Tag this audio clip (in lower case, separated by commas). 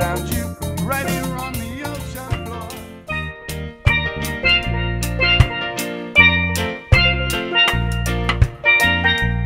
musical instrument, drum, music